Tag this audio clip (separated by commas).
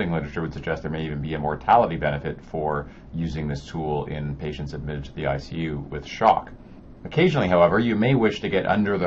Speech